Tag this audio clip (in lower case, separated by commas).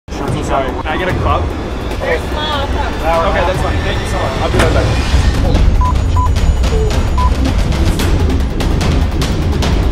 airplane